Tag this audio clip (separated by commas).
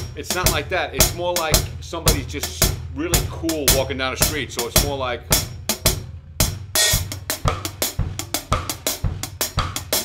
Drum kit, Cymbal, Speech, inside a large room or hall, Musical instrument, Music, Drum, Bass drum